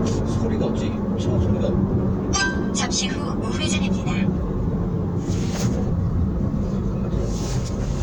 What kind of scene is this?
car